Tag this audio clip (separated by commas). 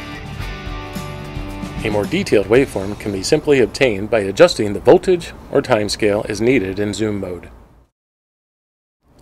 Speech, Music